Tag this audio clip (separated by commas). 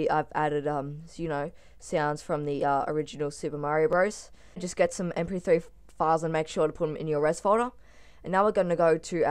Speech